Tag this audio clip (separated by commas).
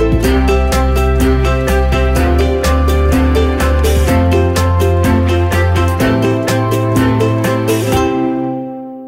Music